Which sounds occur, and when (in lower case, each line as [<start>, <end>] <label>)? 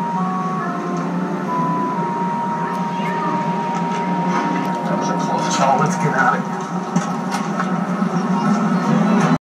[0.00, 5.99] music
[0.00, 9.34] mechanisms
[0.00, 9.34] television
[2.88, 3.19] bird vocalization
[5.36, 6.37] man speaking
[6.54, 6.60] tick
[6.90, 7.00] tap
[9.03, 9.34] squeal
[9.16, 9.29] generic impact sounds